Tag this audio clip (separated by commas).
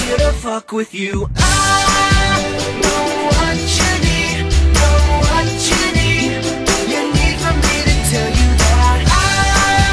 Music